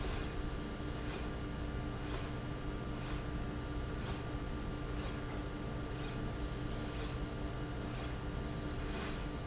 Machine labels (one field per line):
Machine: slide rail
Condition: normal